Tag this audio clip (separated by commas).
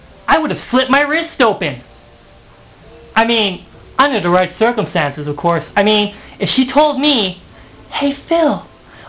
Speech, monologue